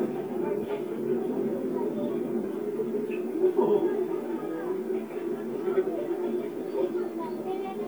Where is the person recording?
in a park